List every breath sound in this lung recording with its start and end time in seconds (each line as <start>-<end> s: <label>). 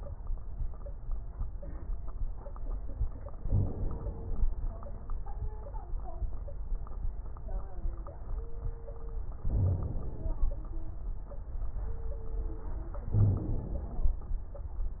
3.44-4.45 s: inhalation
3.44-4.45 s: crackles
9.47-10.49 s: inhalation
9.47-10.49 s: crackles
13.15-13.51 s: wheeze
13.15-14.17 s: inhalation